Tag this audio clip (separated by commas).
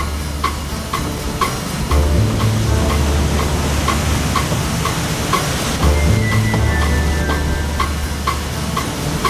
Vehicle, Music, Water vehicle